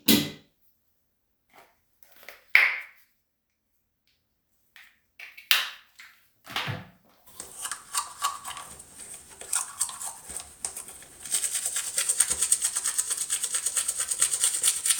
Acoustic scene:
restroom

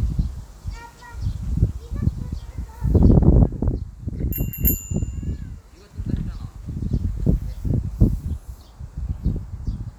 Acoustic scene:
park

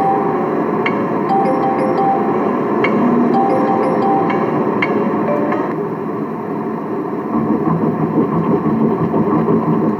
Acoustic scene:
car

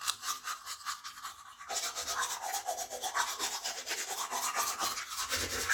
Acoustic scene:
restroom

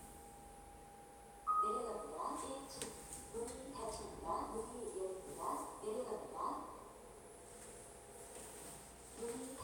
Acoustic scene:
elevator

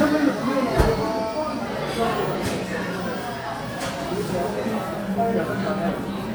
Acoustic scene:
cafe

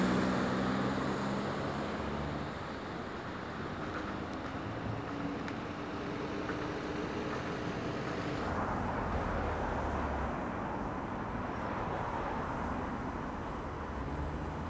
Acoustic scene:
street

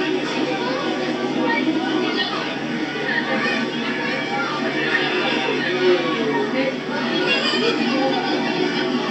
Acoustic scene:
park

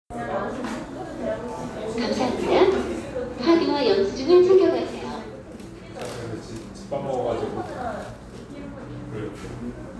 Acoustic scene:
cafe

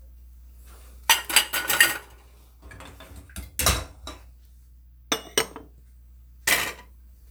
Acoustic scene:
kitchen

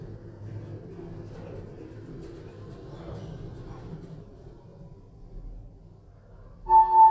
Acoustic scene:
elevator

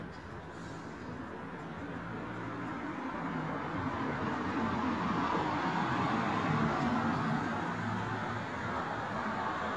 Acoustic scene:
street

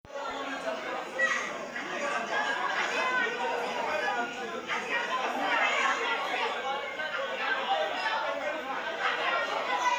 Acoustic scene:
restaurant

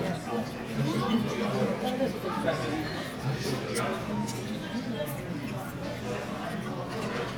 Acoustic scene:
crowded indoor space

